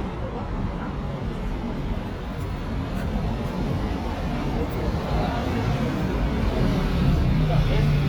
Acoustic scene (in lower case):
residential area